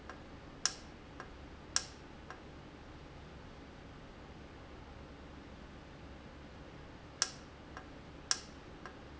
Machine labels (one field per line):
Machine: valve